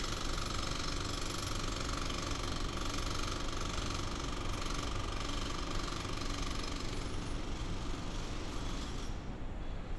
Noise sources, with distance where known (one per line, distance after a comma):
jackhammer